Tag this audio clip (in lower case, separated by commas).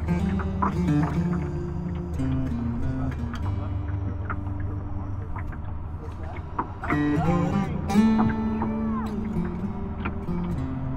speech, music